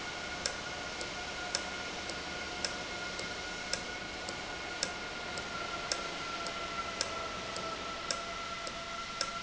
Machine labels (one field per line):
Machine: valve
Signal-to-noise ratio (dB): -6 dB